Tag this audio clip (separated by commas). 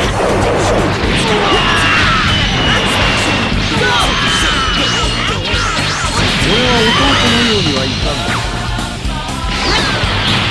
Music, Speech